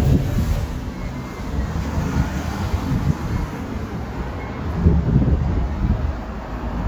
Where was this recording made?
on a street